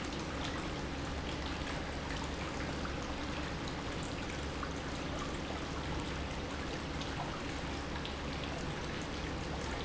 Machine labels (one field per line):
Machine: pump